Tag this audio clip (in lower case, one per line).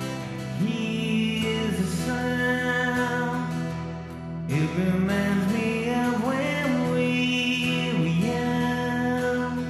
music